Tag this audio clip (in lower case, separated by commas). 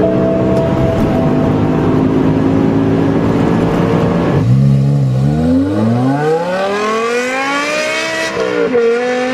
car passing by